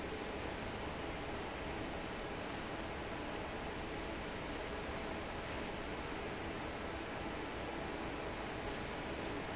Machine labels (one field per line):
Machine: fan